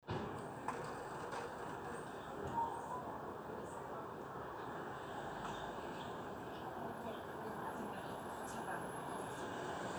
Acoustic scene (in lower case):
residential area